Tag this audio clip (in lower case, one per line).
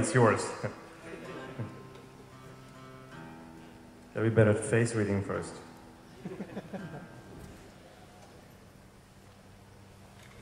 music
speech
musical instrument